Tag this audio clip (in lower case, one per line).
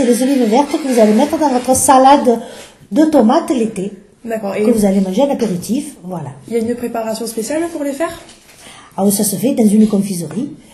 speech